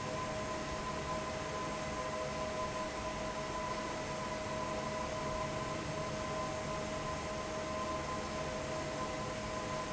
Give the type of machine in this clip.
fan